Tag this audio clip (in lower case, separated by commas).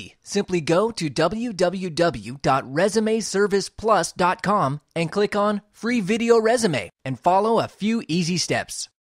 speech